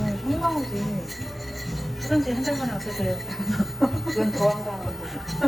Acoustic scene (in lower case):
cafe